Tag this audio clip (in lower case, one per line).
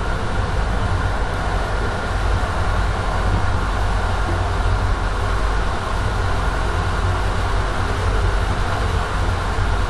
vehicle